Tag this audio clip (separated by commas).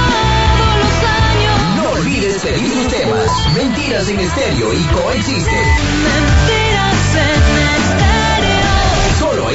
Music, Speech, Radio